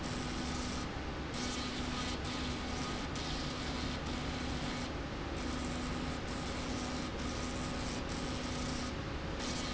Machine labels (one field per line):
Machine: slide rail